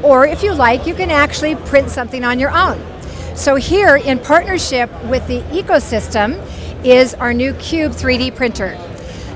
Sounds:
speech

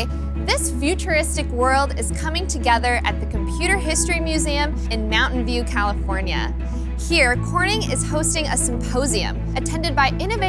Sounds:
speech
music

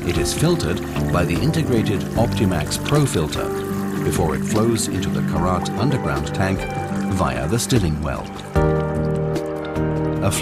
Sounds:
speech
music

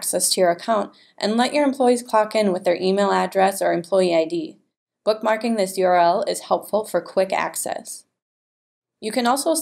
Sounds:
speech

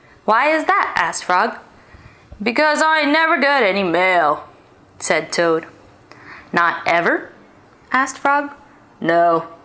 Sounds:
speech

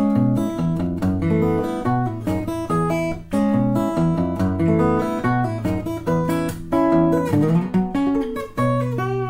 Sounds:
acoustic guitar
guitar
music
musical instrument
strum
plucked string instrument

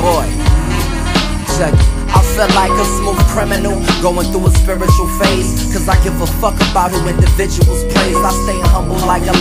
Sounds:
music

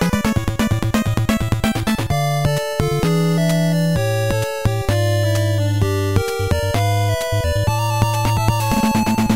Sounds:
music

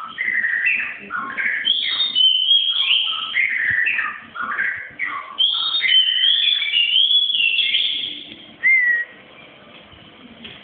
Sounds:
pets
bird
inside a small room

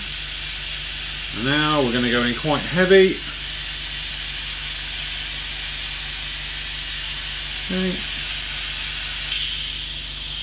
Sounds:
speech

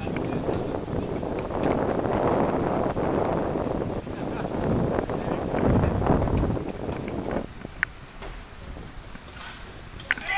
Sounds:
vehicle
bicycle

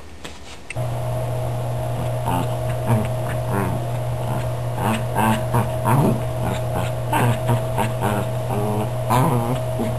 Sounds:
pets
animal

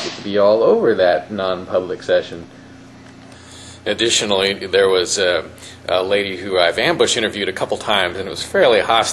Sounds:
speech
inside a large room or hall

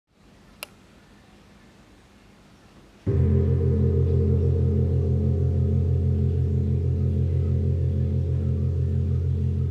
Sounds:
playing gong

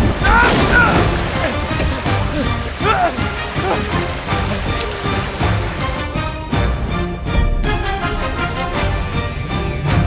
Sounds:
sailing ship
music

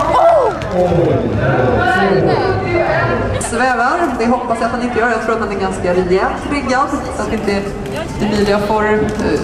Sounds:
run
speech

